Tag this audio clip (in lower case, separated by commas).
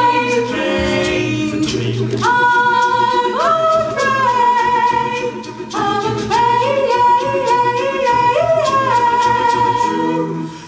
music, tender music, christmas music